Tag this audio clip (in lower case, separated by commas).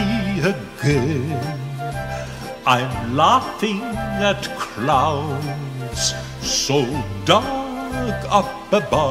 music, male singing